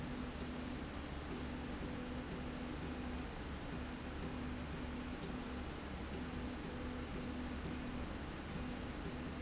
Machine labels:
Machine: slide rail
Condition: normal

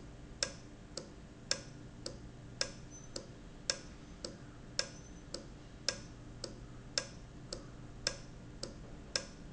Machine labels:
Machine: valve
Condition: normal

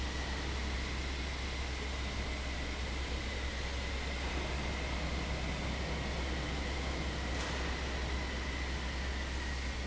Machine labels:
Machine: fan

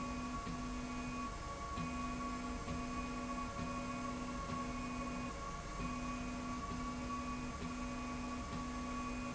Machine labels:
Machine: slide rail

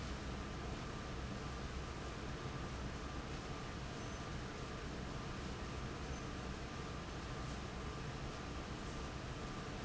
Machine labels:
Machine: fan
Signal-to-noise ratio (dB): 0 dB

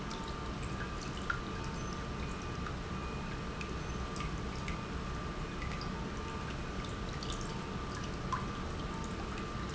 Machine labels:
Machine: pump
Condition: normal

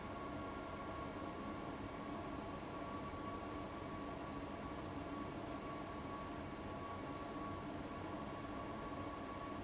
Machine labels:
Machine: fan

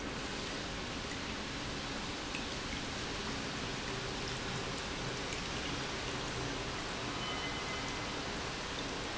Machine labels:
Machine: pump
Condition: normal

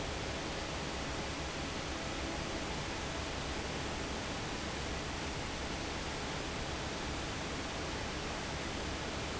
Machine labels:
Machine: fan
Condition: normal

